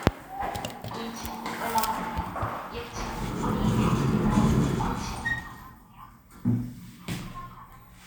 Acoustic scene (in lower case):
elevator